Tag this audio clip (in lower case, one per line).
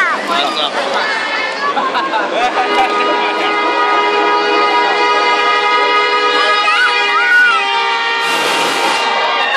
speech